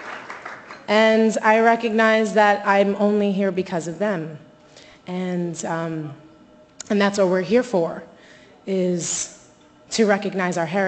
Claps fading and woman speaking